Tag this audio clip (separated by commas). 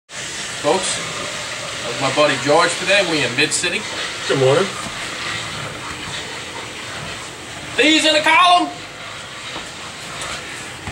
Speech